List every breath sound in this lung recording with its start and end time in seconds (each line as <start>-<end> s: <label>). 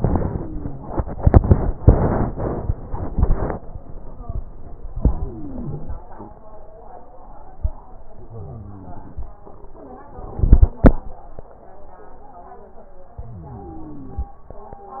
0.24-1.16 s: inhalation
0.24-1.16 s: wheeze
4.96-5.97 s: inhalation
4.96-5.97 s: wheeze
8.19-9.20 s: inhalation
8.19-9.20 s: wheeze
13.22-14.34 s: inhalation
13.22-14.34 s: wheeze